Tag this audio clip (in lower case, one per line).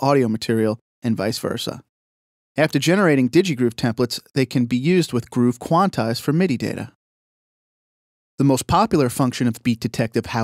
speech